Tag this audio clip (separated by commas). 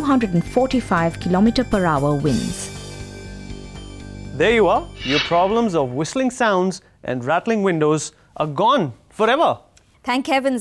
Music, Speech